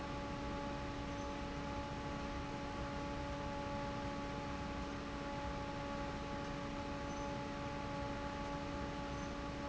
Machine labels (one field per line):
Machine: fan